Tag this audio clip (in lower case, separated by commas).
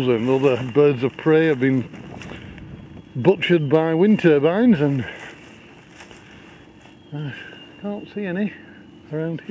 wind, wind noise (microphone)